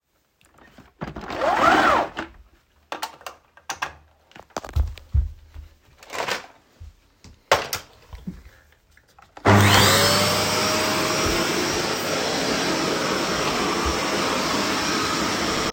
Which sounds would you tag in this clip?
footsteps, vacuum cleaner